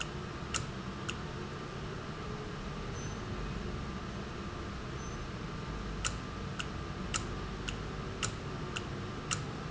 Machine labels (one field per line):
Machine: valve